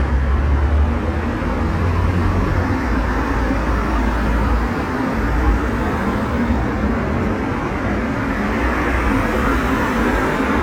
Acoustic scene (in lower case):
street